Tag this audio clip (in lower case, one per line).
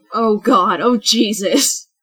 woman speaking
human voice
speech